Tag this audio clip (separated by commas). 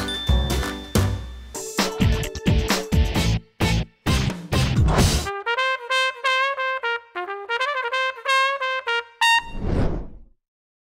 Brass instrument